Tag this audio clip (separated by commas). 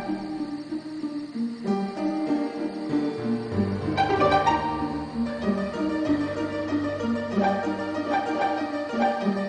Music